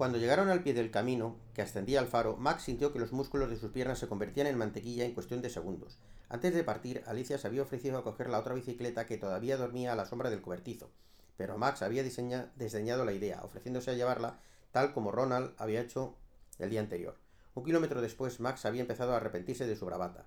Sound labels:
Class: speech